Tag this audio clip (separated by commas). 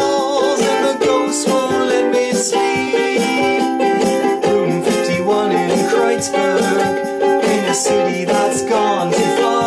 Music, Ukulele